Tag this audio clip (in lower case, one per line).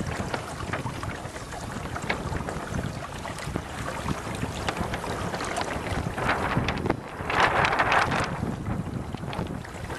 kayak
vehicle
kayak rowing
wind
water vehicle